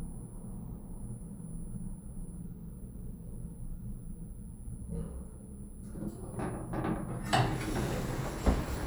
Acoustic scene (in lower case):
elevator